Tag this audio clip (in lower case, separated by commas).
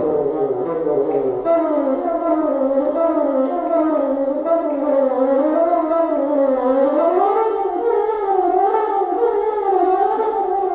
playing bassoon